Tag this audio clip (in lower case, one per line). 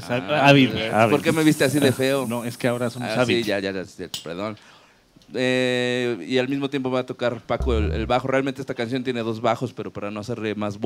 speech